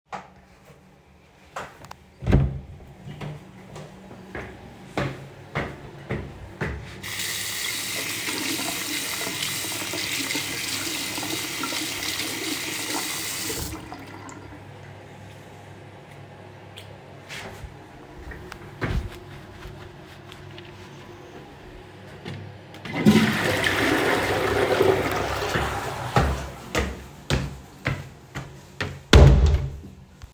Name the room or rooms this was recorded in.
lavatory